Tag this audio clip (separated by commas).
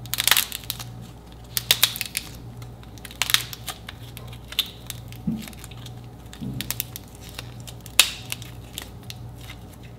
ice cracking